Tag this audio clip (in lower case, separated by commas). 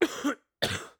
cough, respiratory sounds